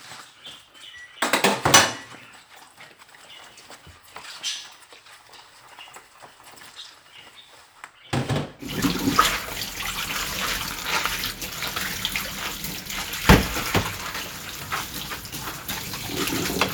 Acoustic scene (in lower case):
kitchen